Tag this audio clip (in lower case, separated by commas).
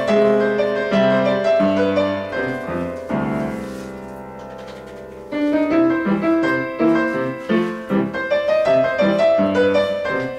independent music, music